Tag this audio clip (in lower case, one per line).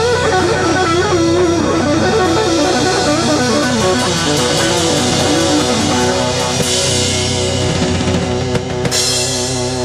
music